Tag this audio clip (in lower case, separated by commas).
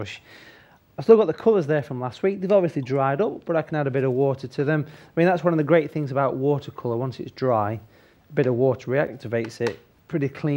speech